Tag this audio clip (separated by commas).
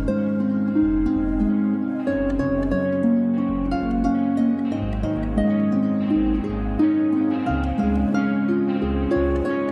playing harp